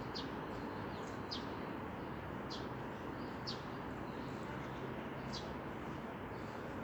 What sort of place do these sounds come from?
residential area